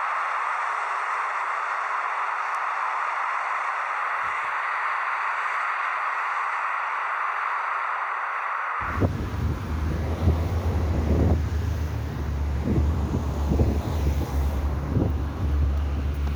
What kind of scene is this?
street